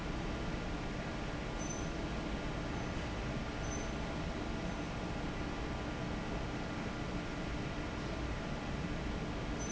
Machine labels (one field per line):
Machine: fan